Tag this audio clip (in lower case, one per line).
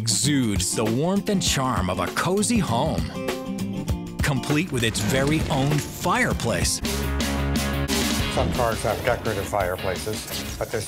speech
music